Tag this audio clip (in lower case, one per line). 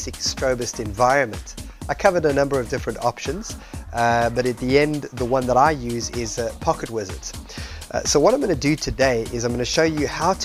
music
speech